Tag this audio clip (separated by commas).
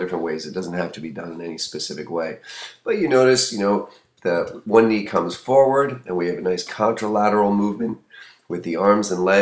Speech